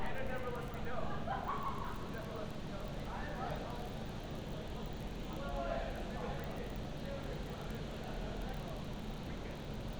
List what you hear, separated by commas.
person or small group talking